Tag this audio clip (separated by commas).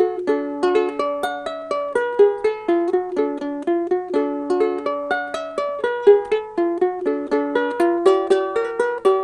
Music